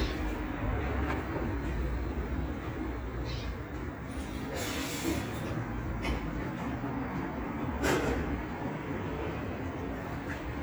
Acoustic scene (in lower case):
residential area